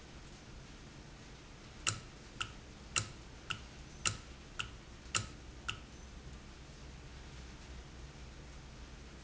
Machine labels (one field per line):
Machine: valve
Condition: normal